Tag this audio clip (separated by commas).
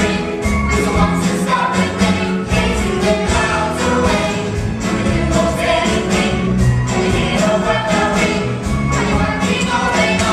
Music